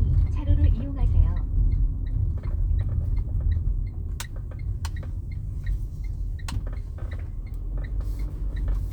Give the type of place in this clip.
car